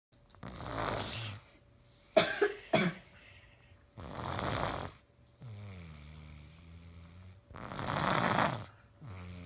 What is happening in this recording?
Snoring, interrupted by a cough